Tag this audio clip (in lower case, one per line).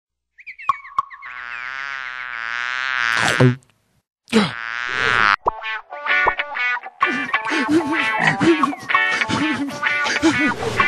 frog